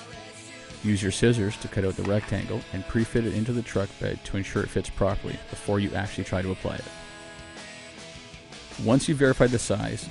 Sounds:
Music, Speech

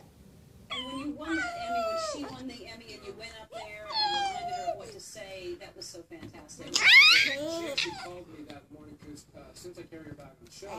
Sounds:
Speech

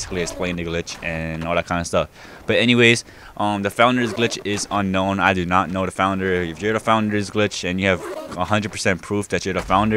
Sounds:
Speech

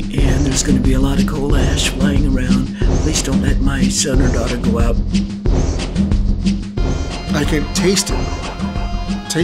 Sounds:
Music, Speech

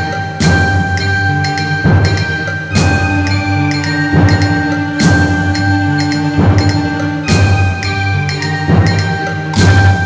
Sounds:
Music

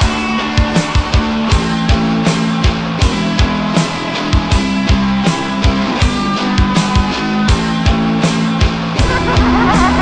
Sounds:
Jazz, Music

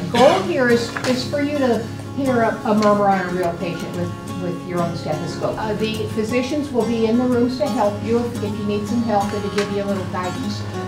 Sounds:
Music, Speech

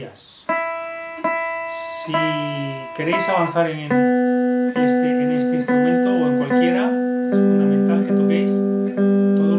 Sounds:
Guitar, Music, Speech, Electric guitar, Musical instrument, Plucked string instrument

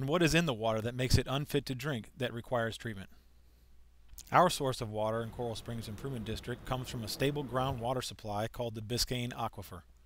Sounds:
Speech

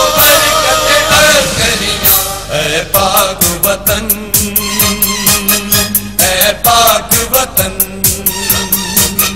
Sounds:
Music of Bollywood, Music

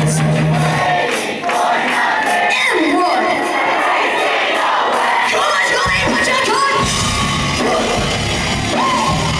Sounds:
Speech, inside a public space, Music, Singing

